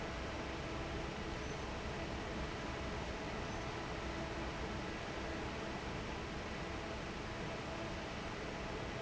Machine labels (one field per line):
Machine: fan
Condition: normal